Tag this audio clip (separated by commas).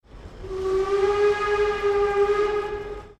Hiss, Alarm, Train, Rail transport, Vehicle